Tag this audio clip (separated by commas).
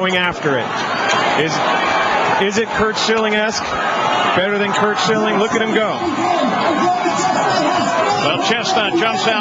Speech